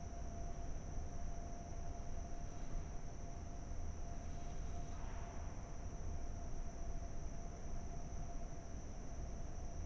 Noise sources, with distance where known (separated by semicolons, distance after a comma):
background noise